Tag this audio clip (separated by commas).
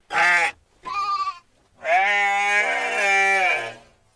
Animal, livestock